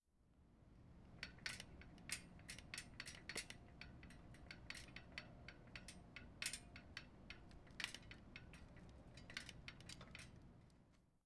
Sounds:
vehicle, bicycle

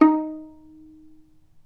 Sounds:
musical instrument, bowed string instrument, music

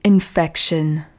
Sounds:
human voice, woman speaking, speech

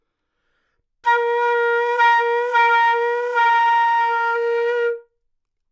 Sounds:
woodwind instrument, musical instrument, music

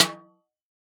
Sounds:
percussion, snare drum, musical instrument, music, drum

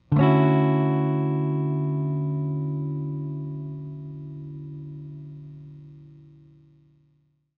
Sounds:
musical instrument, strum, plucked string instrument, electric guitar, guitar, music

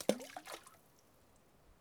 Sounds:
water, splatter, liquid

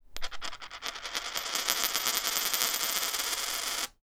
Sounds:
coin (dropping), domestic sounds

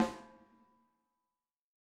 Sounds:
musical instrument, music, snare drum, percussion, drum

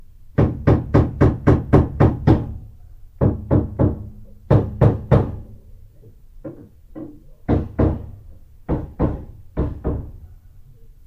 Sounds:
hammer, tools

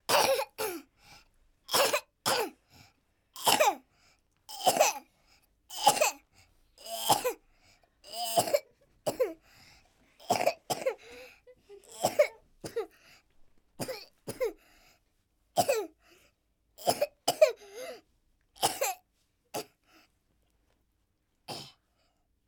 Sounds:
respiratory sounds, cough

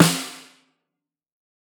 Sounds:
drum, percussion, musical instrument, music, snare drum

